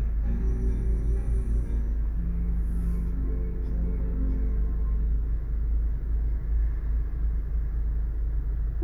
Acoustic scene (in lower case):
car